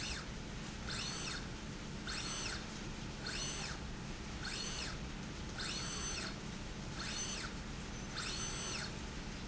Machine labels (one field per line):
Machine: slide rail